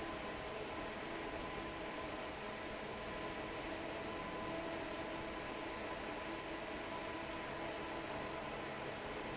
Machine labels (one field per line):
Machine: fan